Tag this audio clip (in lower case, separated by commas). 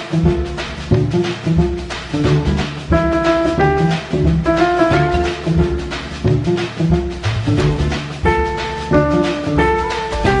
music